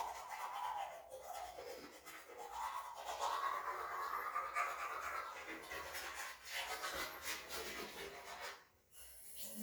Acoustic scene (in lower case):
restroom